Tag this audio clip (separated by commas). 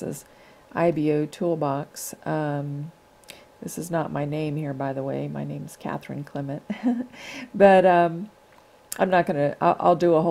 Speech